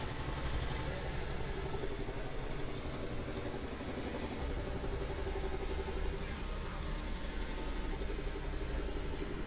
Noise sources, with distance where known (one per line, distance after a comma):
jackhammer, far